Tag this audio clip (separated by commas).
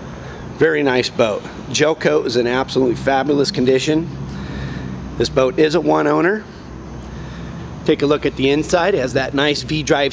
Speech